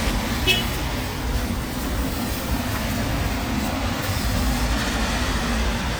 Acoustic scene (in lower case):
street